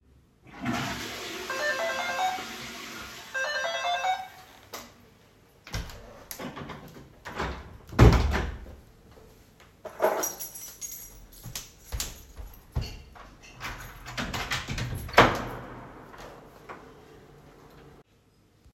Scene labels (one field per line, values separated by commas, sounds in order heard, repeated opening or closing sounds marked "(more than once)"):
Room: bathroom, hallway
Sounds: toilet flushing, bell ringing, door (more than once), keys, footsteps